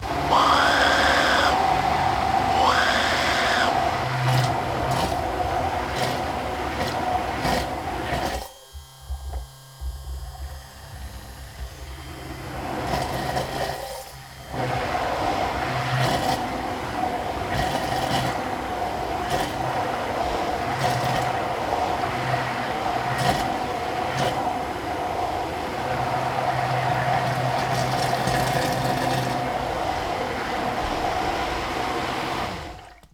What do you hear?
beater